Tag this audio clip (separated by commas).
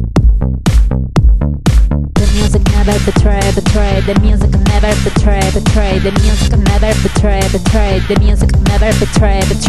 House music, Music